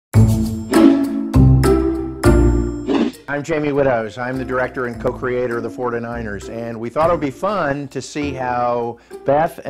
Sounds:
speech, music

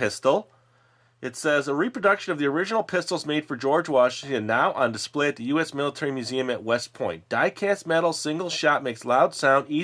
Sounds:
speech

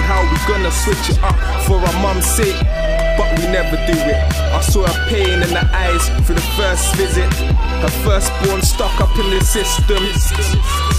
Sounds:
music

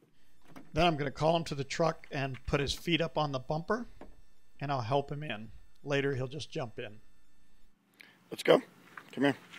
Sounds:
speech

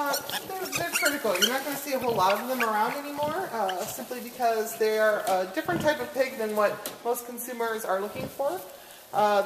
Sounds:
speech, oink

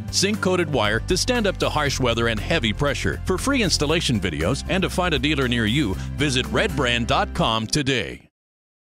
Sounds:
speech, music

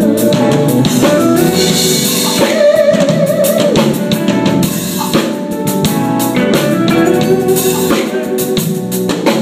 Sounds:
music

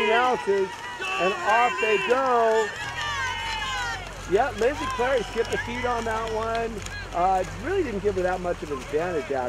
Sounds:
stream, speech

